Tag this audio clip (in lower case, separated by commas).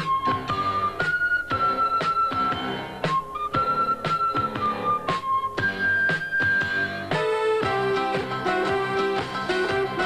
music